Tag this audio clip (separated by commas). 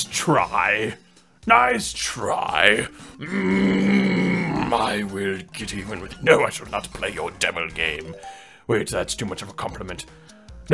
Music, Speech